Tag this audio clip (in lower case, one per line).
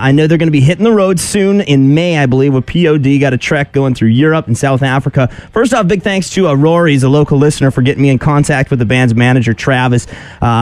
radio
speech